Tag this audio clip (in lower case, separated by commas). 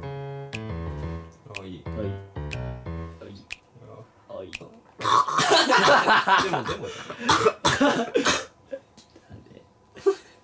people gargling